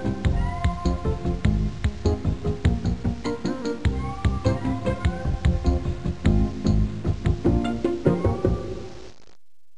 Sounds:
Music

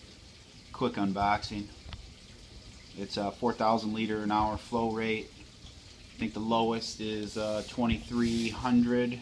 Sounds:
Speech

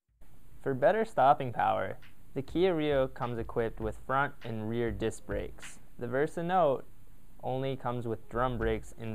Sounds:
Speech

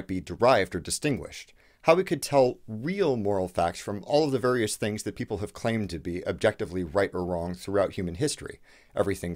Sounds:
Speech

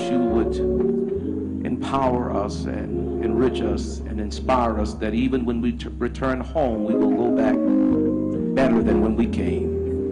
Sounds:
Music, Speech

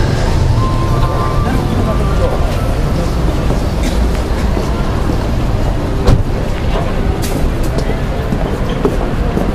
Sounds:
Speech, Music

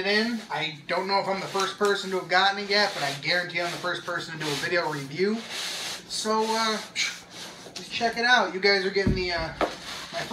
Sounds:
Speech

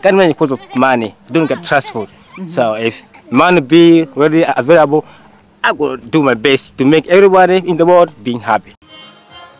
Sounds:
Speech, Music

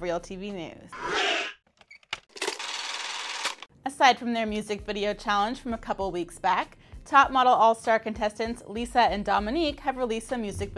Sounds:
Speech, inside a small room

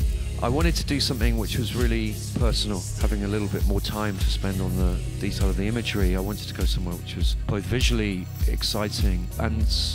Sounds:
Music, Speech

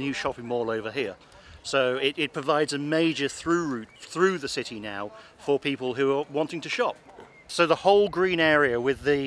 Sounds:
Speech

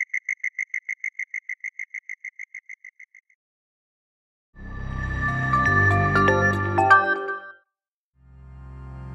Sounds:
cricket chirping

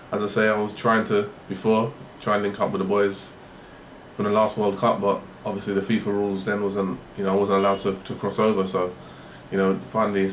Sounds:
Speech

